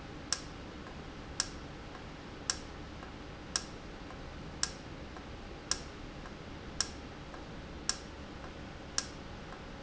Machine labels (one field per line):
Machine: valve